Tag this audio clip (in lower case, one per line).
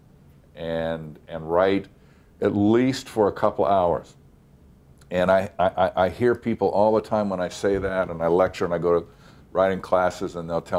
speech